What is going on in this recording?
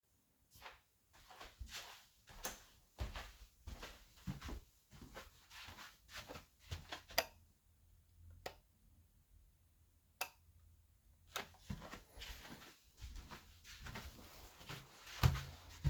I started walking. While walking I switched the light. After stopping I switched the light four times and started walking again.